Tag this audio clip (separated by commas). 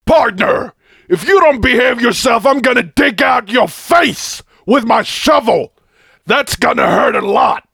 Speech, Human voice, Yell, Male speech, Shout